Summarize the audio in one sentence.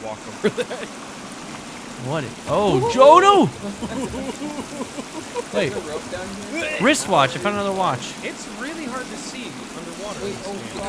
Water flowing followed by men talking and laughing